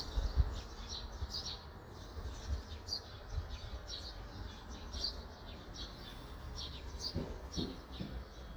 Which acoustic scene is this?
park